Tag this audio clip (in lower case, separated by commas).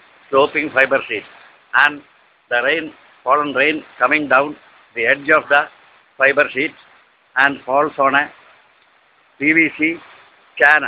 speech